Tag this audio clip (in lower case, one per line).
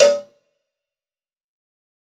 cowbell
bell